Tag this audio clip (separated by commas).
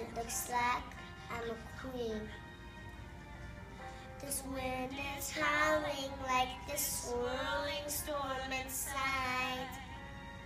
Child singing